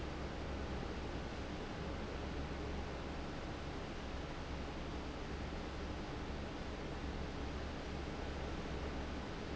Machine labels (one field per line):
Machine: fan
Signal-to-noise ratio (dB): 0 dB